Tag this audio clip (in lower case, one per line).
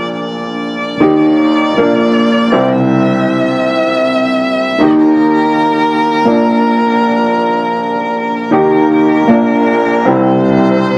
tender music
music